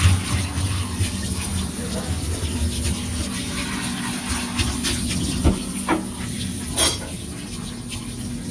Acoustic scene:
kitchen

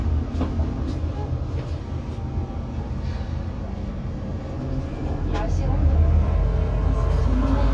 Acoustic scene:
bus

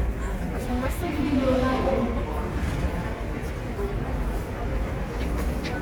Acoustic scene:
subway station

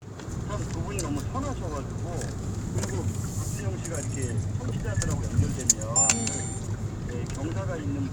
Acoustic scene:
car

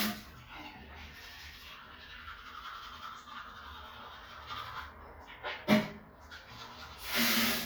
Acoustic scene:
restroom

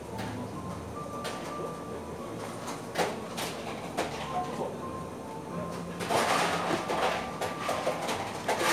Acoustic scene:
cafe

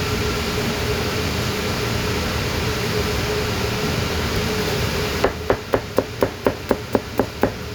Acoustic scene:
kitchen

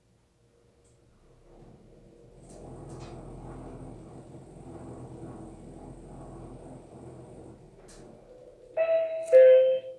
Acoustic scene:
elevator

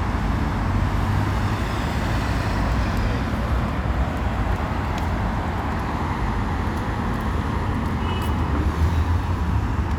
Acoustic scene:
street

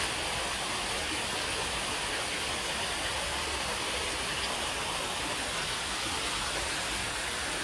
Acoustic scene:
park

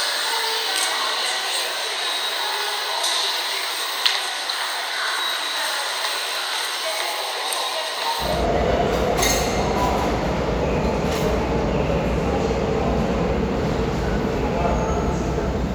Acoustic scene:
subway station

